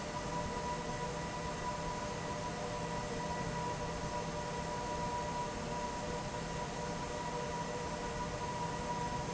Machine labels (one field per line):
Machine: fan